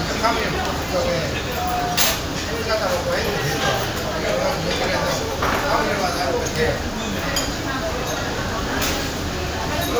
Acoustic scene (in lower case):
crowded indoor space